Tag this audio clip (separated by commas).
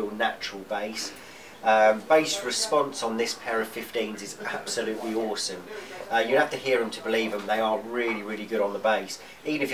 Speech